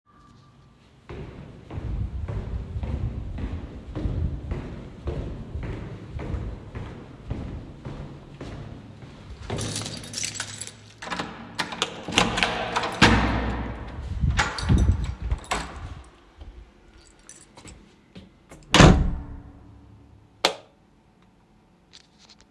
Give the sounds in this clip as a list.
footsteps, keys, door, light switch